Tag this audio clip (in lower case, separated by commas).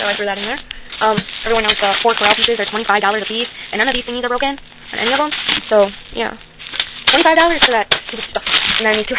speech